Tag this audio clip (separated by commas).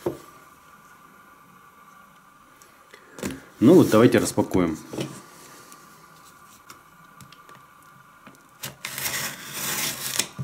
Speech